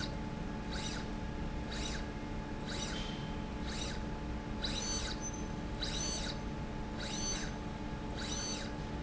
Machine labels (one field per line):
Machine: slide rail